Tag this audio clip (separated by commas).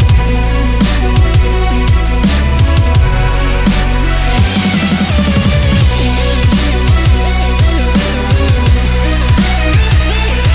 Music